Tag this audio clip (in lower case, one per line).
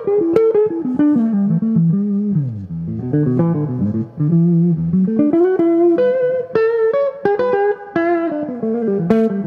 music